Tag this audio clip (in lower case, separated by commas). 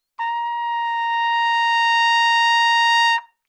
music, musical instrument, trumpet, brass instrument